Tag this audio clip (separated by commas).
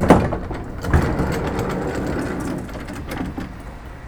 Domestic sounds, Train, Vehicle, Sliding door, Rail transport, Door